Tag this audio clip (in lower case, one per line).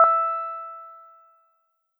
piano
keyboard (musical)
musical instrument
music